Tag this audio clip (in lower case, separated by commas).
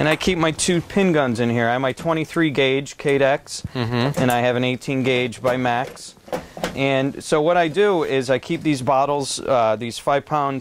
speech